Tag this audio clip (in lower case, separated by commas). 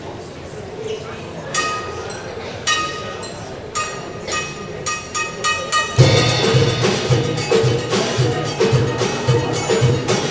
drum, speech, musical instrument, music, drum kit